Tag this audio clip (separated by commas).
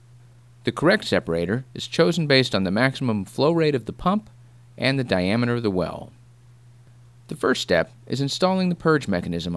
Speech